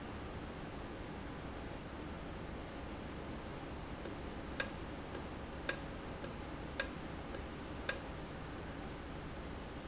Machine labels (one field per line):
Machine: valve